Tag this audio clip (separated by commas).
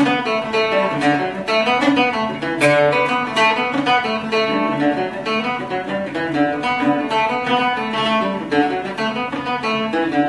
playing mandolin